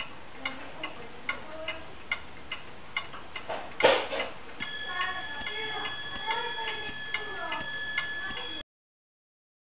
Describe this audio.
A ticktock sound is present and people are speaking in the background